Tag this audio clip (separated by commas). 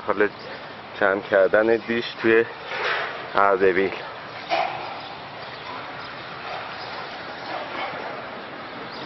Speech